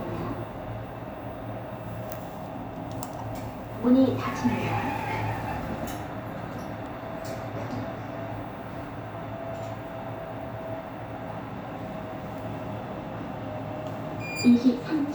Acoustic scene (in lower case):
elevator